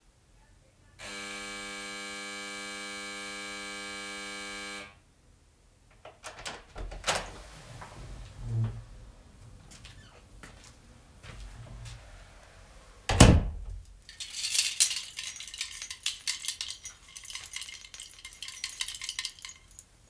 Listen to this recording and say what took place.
Doorbell rang, closed door, then walked with keychain in hand